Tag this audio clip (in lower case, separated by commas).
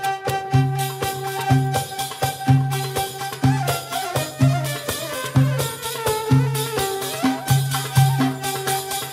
music